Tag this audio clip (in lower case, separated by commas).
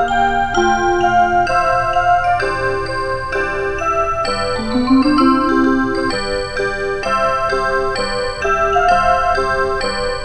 music